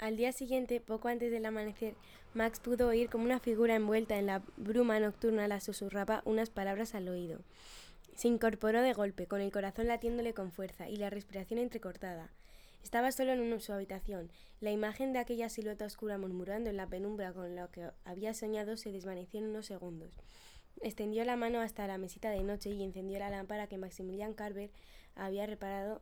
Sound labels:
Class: speech